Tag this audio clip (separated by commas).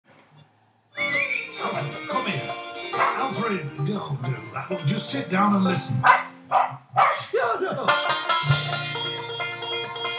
Speech, Music